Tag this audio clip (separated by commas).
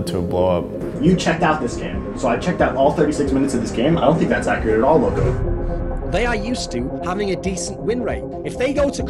Speech, Music